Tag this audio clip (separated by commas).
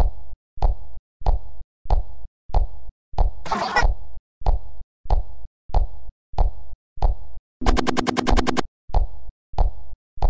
Sound effect